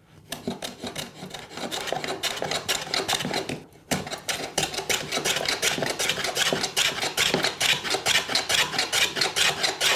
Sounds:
rub, filing (rasp), tools, wood

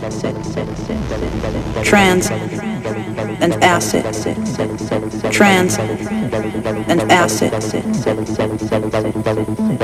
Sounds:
speech, music

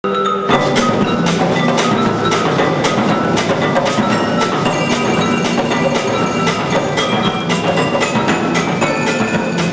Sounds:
drum, percussion

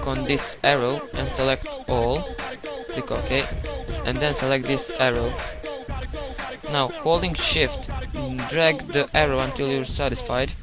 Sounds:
music, speech

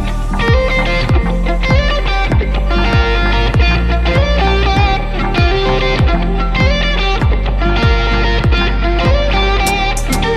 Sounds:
music, heavy metal

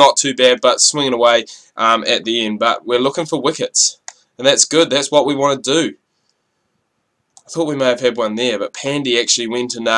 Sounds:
speech, clicking, inside a small room

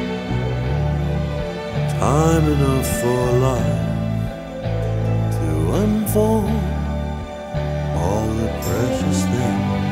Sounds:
music

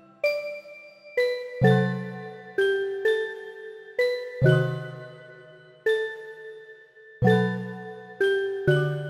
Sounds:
music

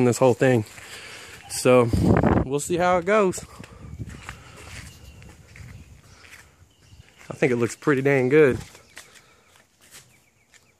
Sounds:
speech

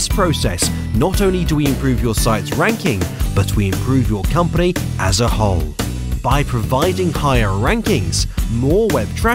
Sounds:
speech, music

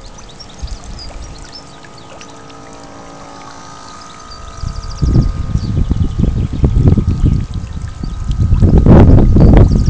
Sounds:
speedboat

